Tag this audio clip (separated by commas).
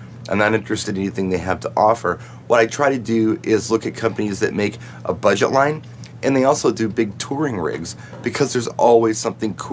Speech